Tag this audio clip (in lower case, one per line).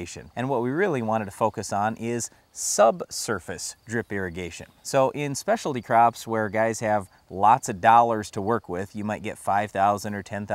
speech